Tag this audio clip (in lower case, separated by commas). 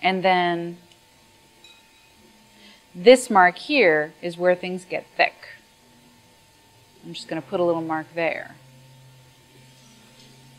inside a large room or hall, speech